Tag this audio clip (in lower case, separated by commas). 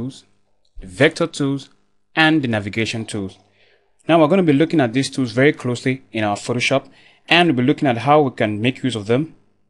speech